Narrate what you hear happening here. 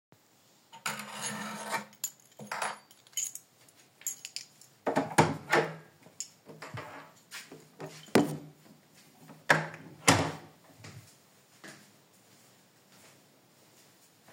I was heading outside, grabbed my keys open the exit door and closed it afterwards.